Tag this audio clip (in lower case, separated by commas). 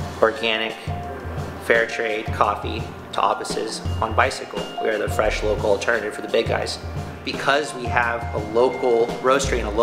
music, speech